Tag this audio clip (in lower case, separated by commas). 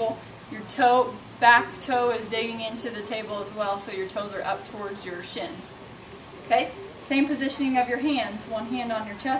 speech